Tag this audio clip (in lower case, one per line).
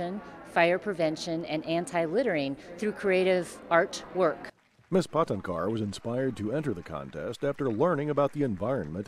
speech